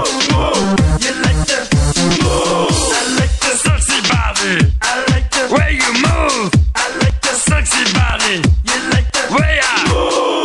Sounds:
Music

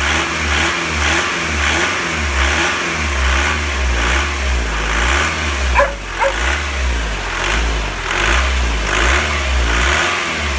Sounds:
Accelerating, Vehicle, Car, Heavy engine (low frequency)

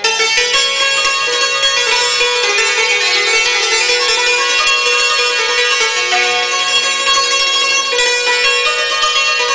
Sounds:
Folk music, Music, Traditional music

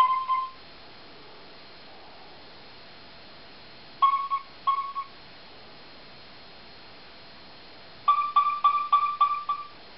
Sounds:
Sonar

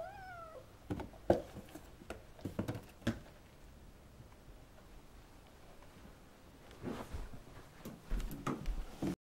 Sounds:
Domestic animals, Cat, Hiss

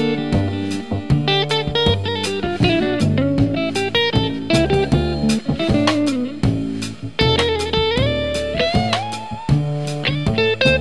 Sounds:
playing electric guitar, Music, Electric guitar, Musical instrument, Plucked string instrument

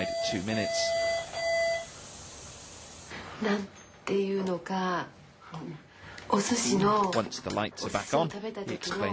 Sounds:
Speech, smoke alarm

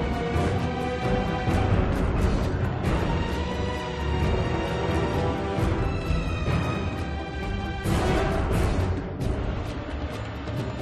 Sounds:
Music

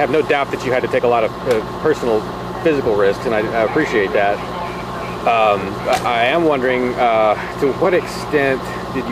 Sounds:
outside, rural or natural, Speech

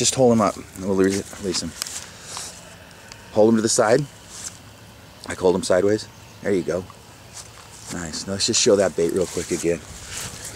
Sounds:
Speech

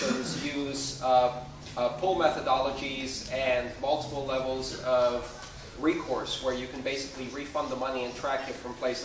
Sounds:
Speech

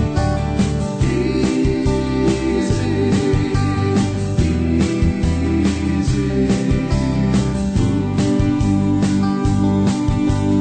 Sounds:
Music

